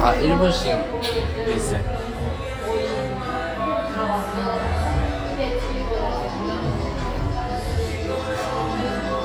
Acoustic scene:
cafe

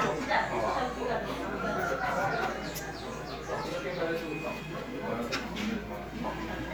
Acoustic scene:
crowded indoor space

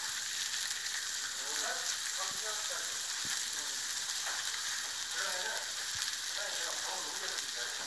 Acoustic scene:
restaurant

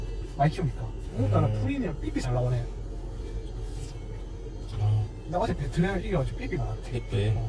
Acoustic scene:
car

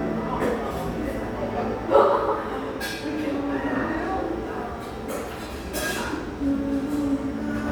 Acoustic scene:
cafe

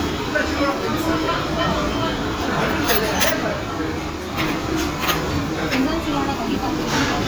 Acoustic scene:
crowded indoor space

